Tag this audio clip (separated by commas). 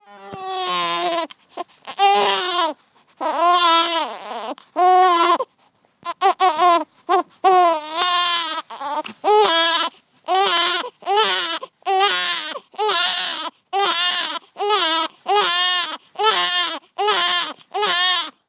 sobbing, Human voice